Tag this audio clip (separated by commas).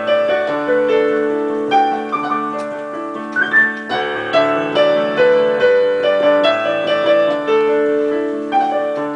Music